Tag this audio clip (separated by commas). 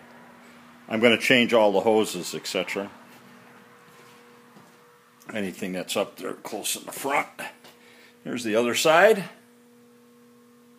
Speech